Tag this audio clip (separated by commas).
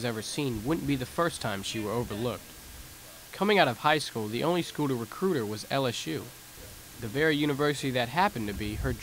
outside, urban or man-made, Speech